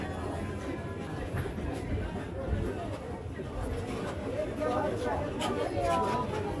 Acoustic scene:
crowded indoor space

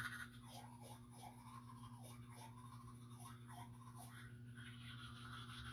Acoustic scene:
restroom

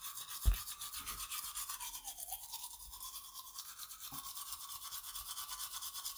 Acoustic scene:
restroom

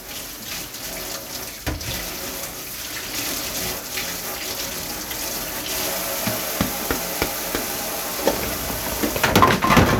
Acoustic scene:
kitchen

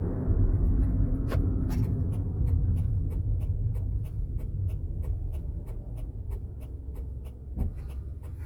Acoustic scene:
car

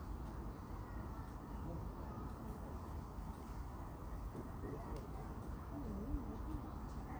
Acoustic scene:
park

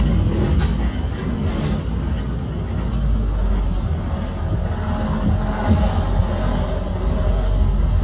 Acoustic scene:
bus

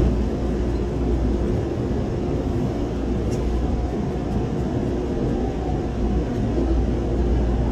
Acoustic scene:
subway train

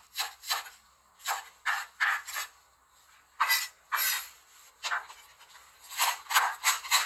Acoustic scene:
kitchen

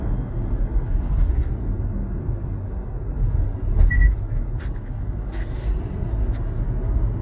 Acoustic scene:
car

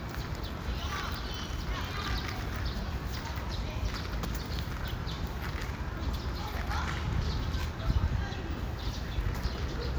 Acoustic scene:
park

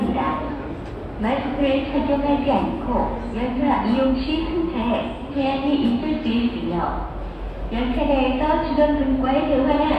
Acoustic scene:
subway station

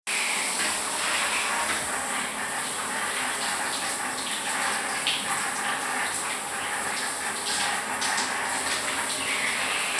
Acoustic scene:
restroom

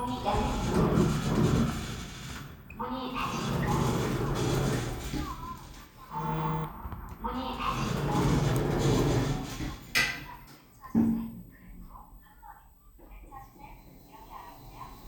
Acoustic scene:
elevator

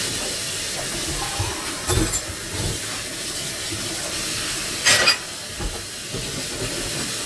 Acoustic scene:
kitchen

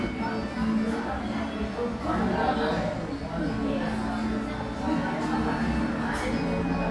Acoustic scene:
crowded indoor space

